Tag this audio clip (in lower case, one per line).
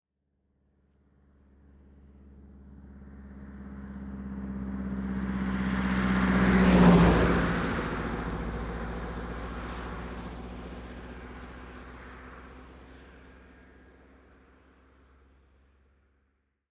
engine
car
vehicle
motor vehicle (road)
car passing by
truck